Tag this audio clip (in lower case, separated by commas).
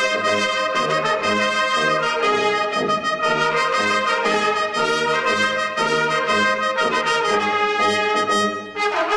music, french horn, trumpet, musical instrument, orchestra, brass instrument